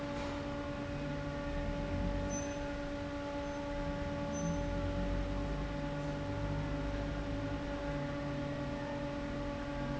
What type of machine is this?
fan